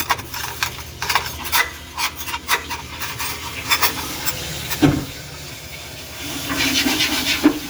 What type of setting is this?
kitchen